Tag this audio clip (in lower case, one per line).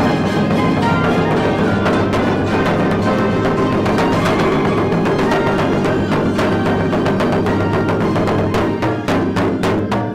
playing timpani